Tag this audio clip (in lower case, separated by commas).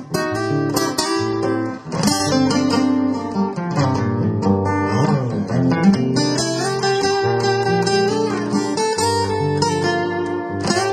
music, blues, musical instrument